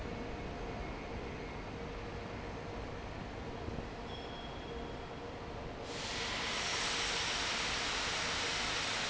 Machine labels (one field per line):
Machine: fan